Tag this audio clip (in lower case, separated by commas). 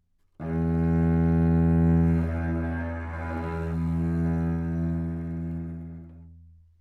musical instrument, music, bowed string instrument